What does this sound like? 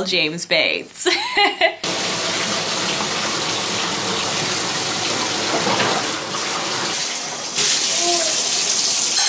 Female talking and laughing followed by water running